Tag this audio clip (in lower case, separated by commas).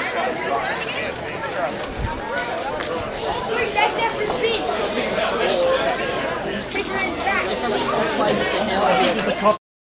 speech